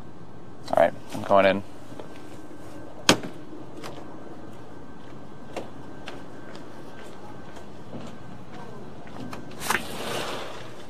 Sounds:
speech, inside a large room or hall

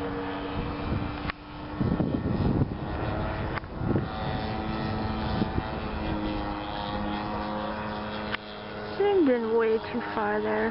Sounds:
aircraft

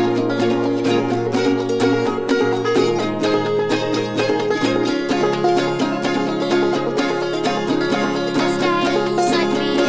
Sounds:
music

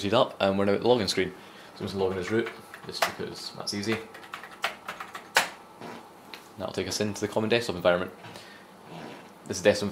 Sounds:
inside a small room, typewriter, speech, typing on typewriter

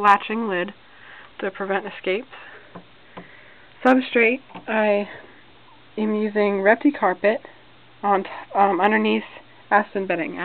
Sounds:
speech, inside a small room

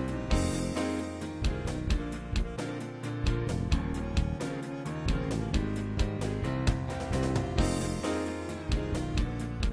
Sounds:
music, rhythm and blues

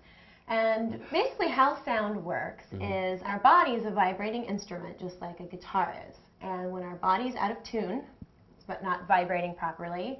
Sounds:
speech

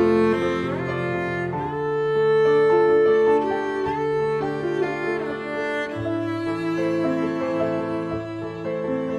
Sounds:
piano, keyboard (musical), music, electric piano

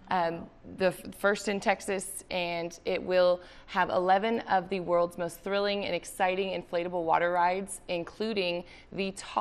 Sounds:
speech

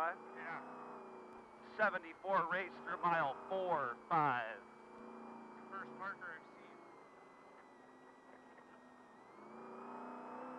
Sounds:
speech, vehicle, car

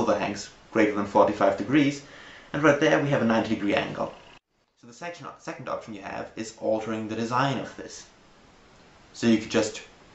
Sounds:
speech

